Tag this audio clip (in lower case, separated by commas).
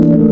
organ, musical instrument, music, keyboard (musical)